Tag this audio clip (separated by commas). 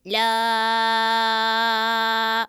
Human voice, Singing, Male singing